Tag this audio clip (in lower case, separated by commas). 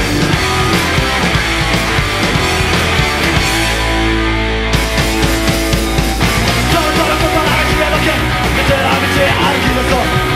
music, punk rock, rock music